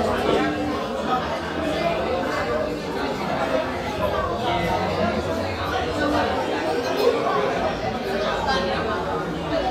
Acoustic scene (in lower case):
crowded indoor space